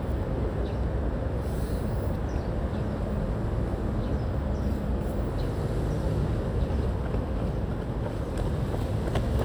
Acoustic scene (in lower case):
residential area